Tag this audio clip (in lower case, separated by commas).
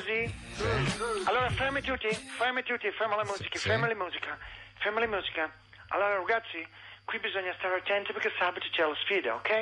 music, speech